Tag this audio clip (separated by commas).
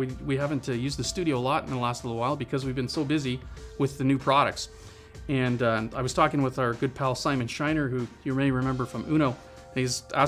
Speech, Music